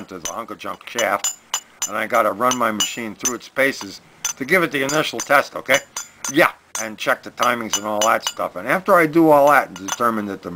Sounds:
speech

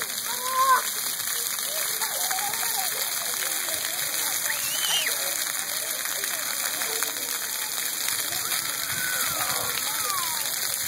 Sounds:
water, speech

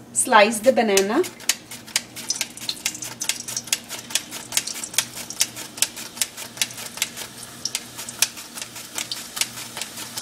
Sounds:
frying (food)

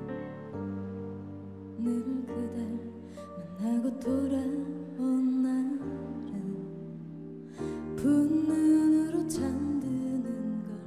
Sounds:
music, sad music

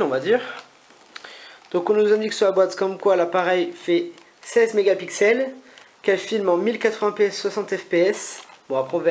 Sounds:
speech

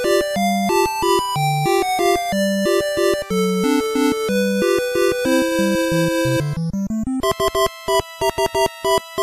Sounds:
music, video game music

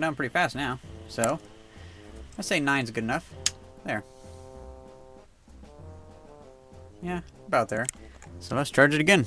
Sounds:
music, speech

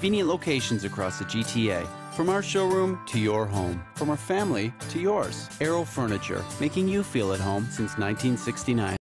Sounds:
speech, music

